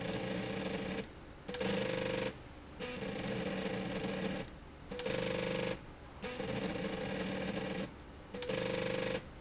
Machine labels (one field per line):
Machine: slide rail